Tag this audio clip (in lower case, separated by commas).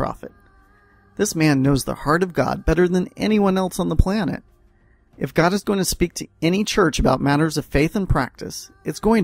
speech, monologue